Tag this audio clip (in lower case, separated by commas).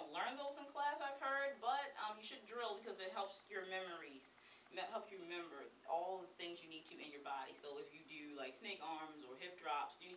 speech